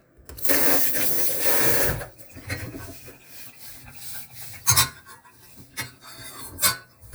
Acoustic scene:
kitchen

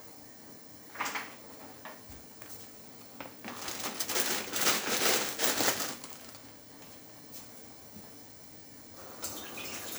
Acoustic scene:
kitchen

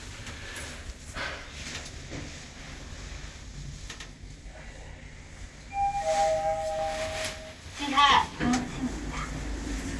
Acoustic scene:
elevator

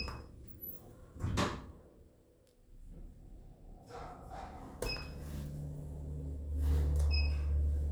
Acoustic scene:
elevator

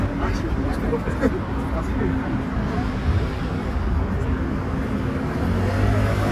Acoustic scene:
street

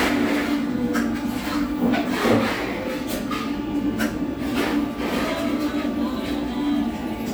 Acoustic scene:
cafe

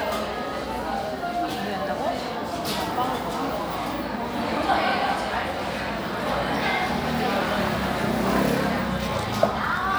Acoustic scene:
cafe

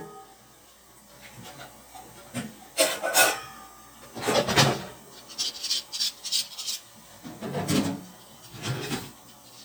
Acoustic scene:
kitchen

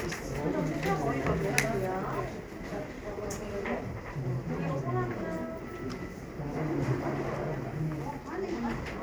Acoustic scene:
crowded indoor space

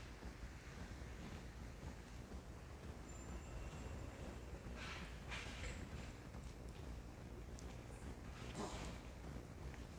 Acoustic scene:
residential area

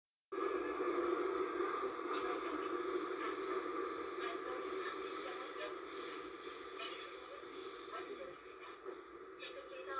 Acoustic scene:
subway train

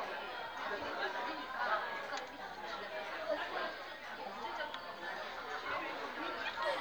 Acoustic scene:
crowded indoor space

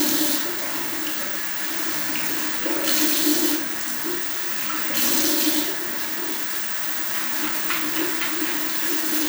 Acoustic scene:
restroom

